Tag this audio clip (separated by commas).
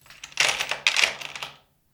Tools